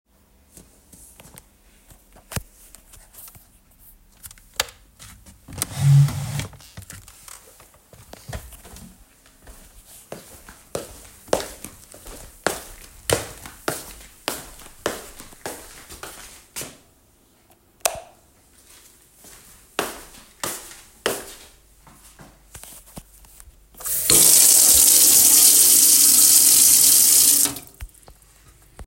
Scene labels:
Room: office, hallway, kitchen; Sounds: footsteps, light switch, running water

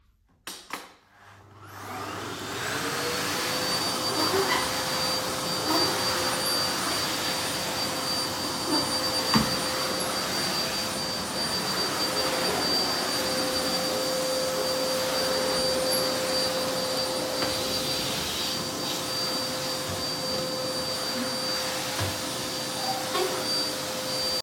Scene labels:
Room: living room; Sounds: vacuum cleaner

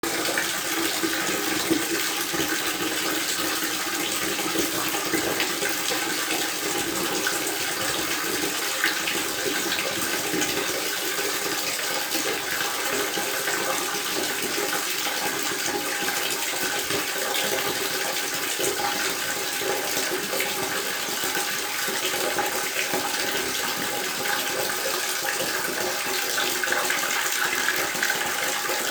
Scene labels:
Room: bathroom; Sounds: running water

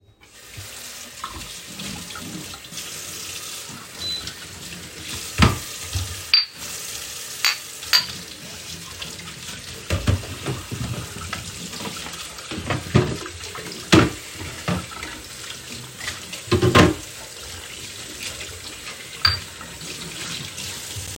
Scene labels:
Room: kitchen; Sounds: running water, cutlery and dishes

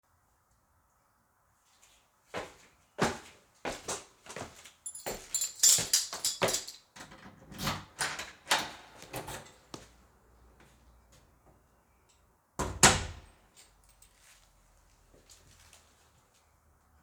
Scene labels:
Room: hallway; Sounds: footsteps, keys, door (more than once)

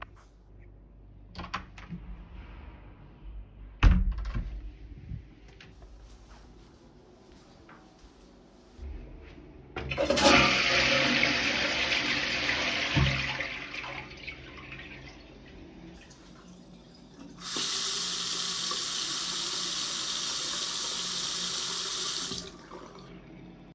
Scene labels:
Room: bathroom; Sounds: door (more than once), toilet flushing, running water

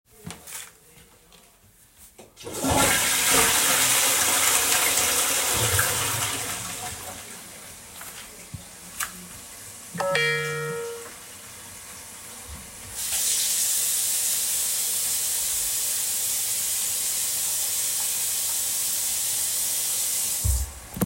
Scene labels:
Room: bathroom; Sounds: toilet flushing, phone ringing, running water

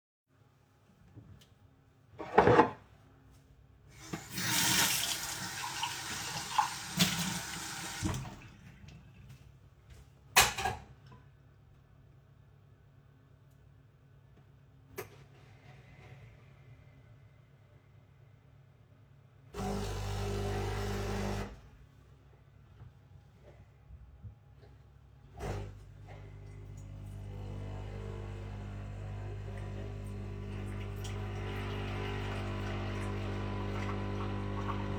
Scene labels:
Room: kitchen, living room; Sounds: cutlery and dishes, running water, coffee machine

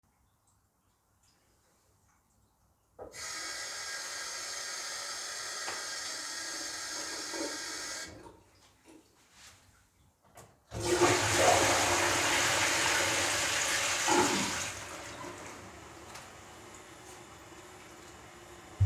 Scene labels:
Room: bathroom; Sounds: running water, toilet flushing

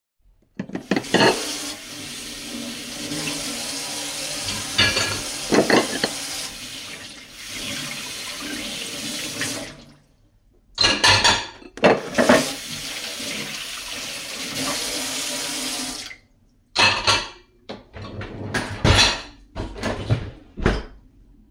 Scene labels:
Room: kitchen; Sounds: running water, cutlery and dishes

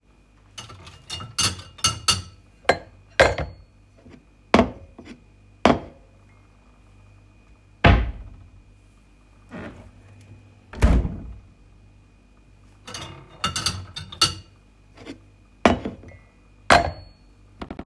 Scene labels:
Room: kitchen; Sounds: cutlery and dishes, wardrobe or drawer

